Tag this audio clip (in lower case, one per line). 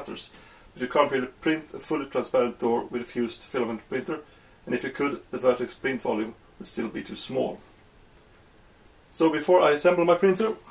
speech